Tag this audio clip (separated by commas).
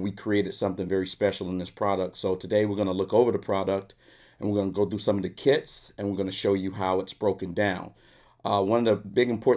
Speech